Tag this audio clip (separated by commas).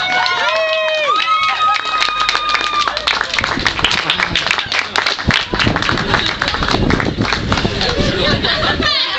Speech